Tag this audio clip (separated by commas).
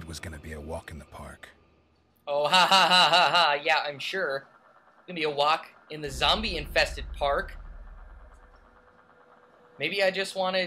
Speech